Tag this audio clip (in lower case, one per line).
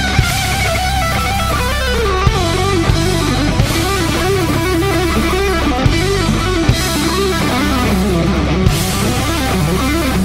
heavy metal
music